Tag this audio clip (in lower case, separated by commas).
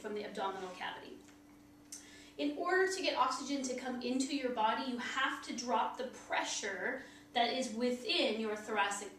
speech